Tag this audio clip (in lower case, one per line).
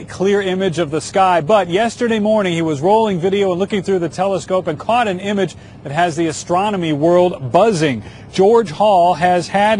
speech